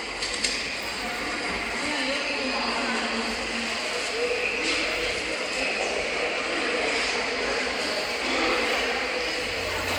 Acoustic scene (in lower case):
subway station